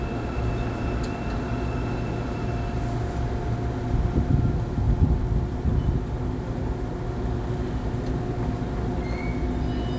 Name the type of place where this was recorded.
subway train